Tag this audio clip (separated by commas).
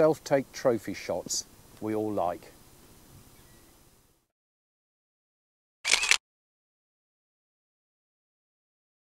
Single-lens reflex camera, Speech